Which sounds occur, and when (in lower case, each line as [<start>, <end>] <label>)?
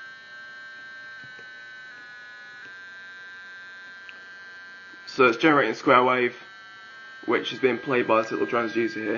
[0.00, 9.15] sine wave
[1.14, 1.53] generic impact sounds
[1.82, 2.12] generic impact sounds
[2.59, 2.79] generic impact sounds
[4.00, 4.22] generic impact sounds
[5.07, 6.43] man speaking
[7.21, 9.15] man speaking